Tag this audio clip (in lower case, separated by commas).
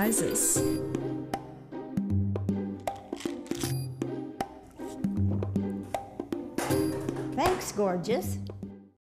music, speech